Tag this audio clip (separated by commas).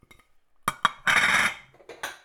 Glass, clink